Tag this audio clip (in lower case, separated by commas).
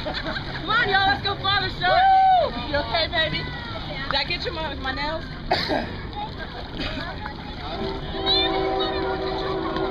speech